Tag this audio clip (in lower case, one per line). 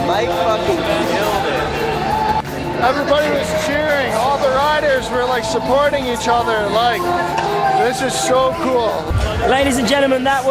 speech
inside a public space
music